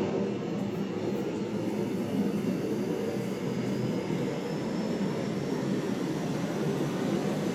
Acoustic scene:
subway train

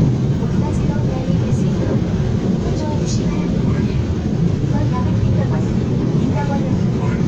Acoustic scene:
subway train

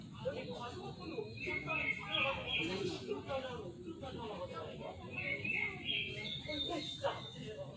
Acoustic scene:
park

